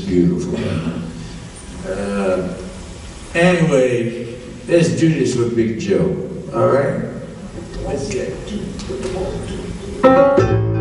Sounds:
speech
man speaking

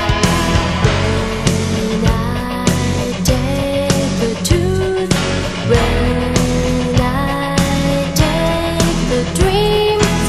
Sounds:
music

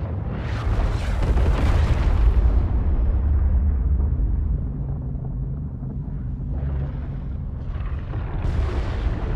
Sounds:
volcano explosion

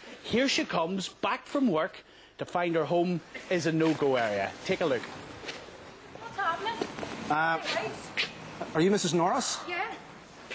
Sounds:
speech

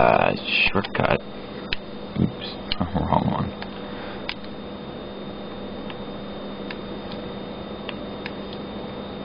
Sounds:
speech

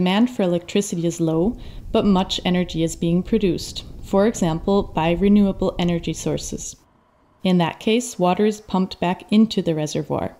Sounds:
speech

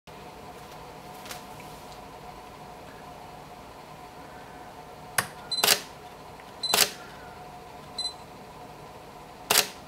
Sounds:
camera

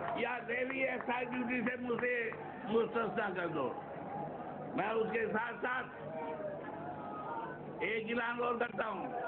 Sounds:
speech

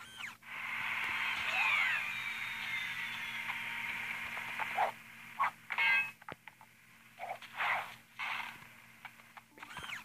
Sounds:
outside, rural or natural
sound effect

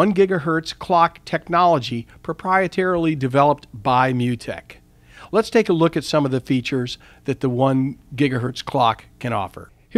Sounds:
speech

